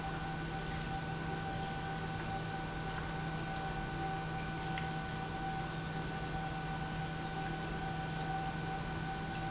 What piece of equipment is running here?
pump